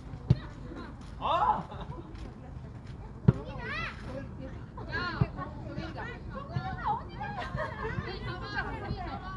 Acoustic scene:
residential area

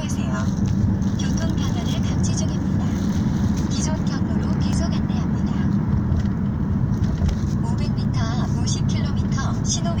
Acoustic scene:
car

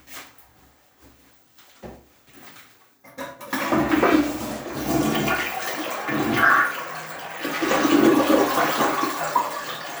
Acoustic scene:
restroom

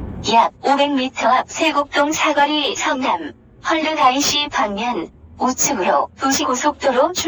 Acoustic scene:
car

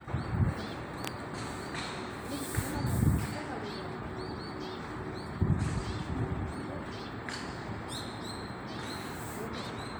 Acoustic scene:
park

